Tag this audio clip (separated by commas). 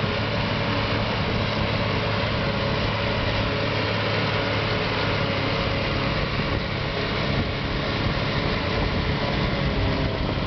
Vehicle